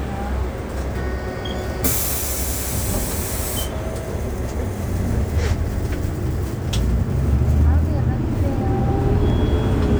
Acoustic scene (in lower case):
bus